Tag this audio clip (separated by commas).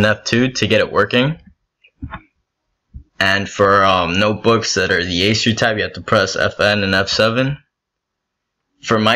Speech